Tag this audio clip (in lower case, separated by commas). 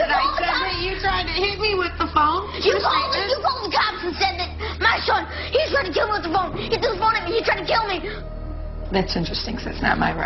children shouting